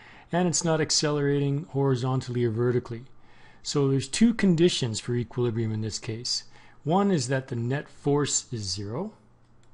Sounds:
Speech

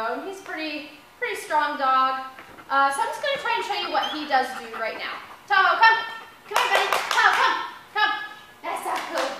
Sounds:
Speech

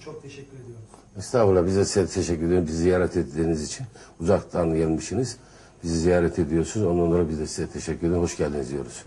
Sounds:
Speech

